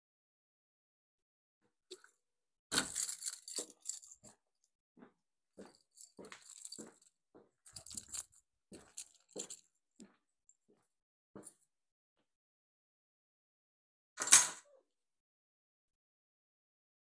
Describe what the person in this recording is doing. I walked trough the hallway with my keychain in hand, then I stopped and placed keychain on the table.